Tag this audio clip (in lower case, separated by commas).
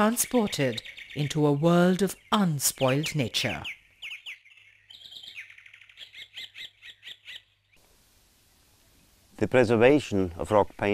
bird call, bird, tweet